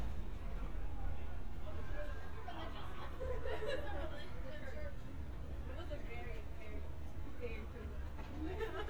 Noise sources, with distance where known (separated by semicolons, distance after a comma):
background noise